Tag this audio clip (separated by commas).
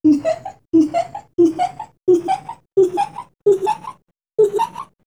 Laughter, Human voice